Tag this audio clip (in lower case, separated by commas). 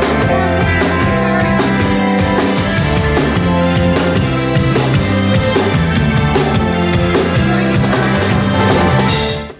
speech, music